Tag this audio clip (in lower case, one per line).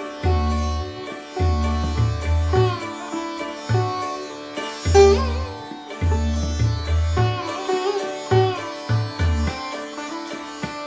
musical instrument
music
plucked string instrument
sitar